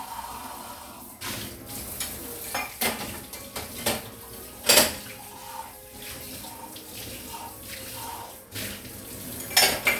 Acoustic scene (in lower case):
kitchen